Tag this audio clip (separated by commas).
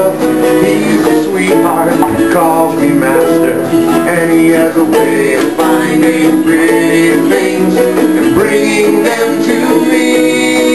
inside a large room or hall, Ukulele, Music